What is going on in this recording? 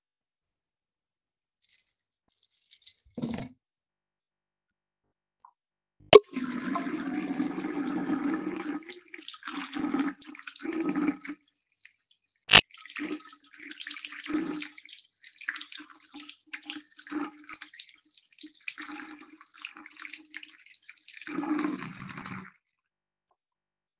I walked to the sink with my keys in hand causing the keychain to jangle as I moved. I turned on the tap and let the water run for a few moments. I then turned the tap off.